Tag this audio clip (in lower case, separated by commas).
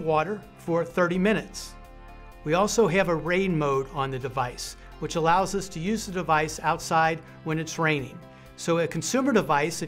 music, speech